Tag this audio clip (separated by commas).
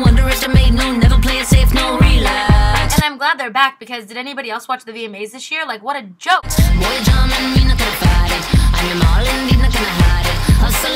Music, Speech